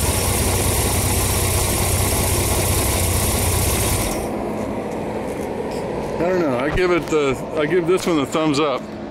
An engine is idling outside and a man speaks